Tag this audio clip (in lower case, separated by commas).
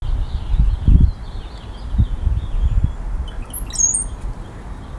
bird, animal, wild animals